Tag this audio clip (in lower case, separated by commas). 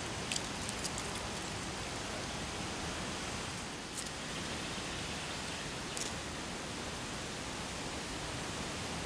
woodpecker pecking tree